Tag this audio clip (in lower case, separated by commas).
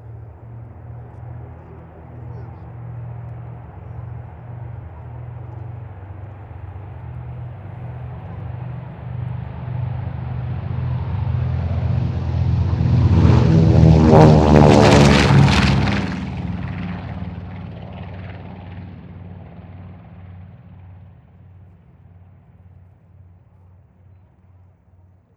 vehicle, aircraft